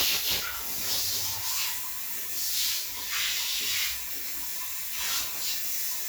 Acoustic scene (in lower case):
restroom